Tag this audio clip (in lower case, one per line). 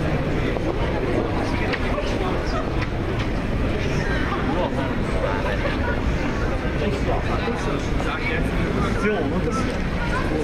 speech noise
speech
crowd